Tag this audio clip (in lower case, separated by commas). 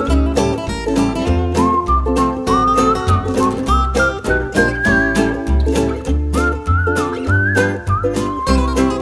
flamenco, mandolin